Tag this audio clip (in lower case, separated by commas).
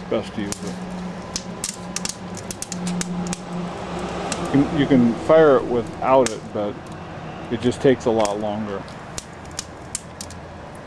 vehicle, speech